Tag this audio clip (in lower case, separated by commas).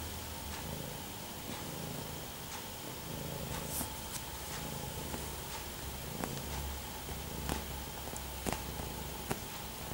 cat purring